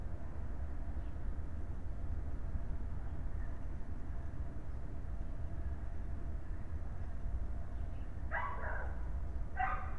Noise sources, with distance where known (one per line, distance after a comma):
background noise